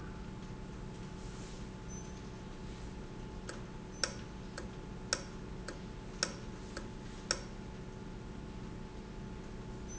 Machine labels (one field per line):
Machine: valve